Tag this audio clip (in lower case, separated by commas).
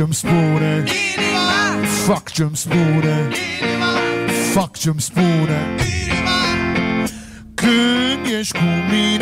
music, orchestra